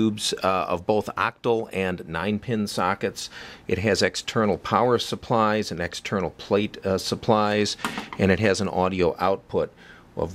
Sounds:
speech

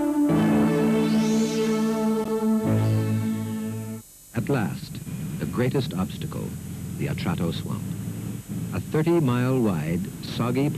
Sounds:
music, speech

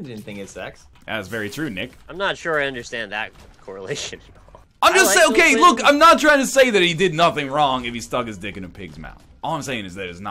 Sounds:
speech

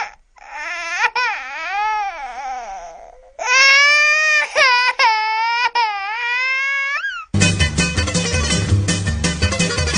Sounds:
sobbing, music

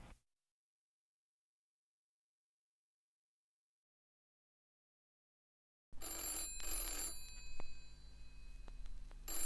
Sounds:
telephone

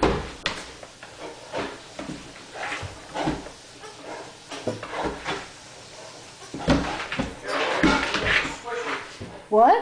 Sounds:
speech

